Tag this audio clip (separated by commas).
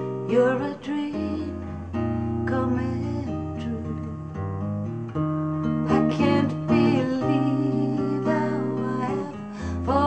Music